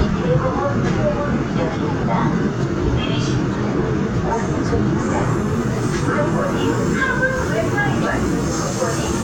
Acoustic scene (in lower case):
subway train